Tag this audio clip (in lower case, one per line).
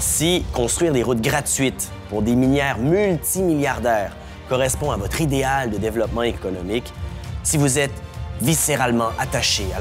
music
speech